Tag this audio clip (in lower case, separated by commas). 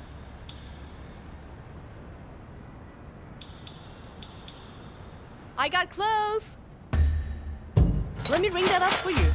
speech